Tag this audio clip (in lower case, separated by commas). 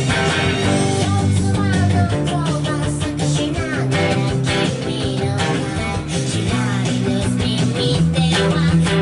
plucked string instrument, musical instrument, guitar, electric guitar, music